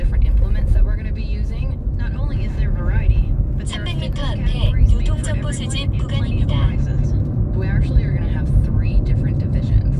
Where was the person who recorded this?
in a car